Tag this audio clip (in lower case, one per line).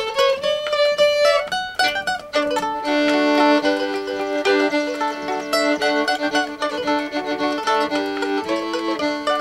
music
mandolin